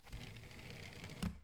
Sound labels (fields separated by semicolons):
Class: window; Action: opening; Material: glass